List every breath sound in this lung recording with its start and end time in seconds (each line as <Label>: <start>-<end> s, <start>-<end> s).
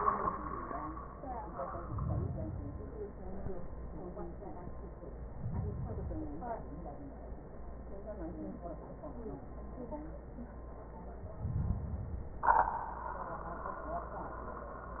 Inhalation: 1.72-3.11 s, 5.20-6.81 s, 11.23-12.48 s